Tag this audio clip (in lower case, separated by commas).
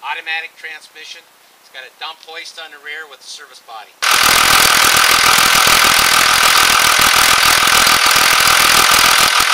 vehicle, speech